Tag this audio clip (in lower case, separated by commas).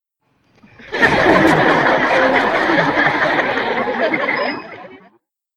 human voice, laughter, chuckle